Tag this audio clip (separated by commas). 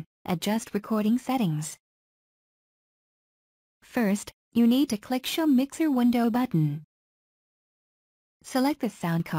Speech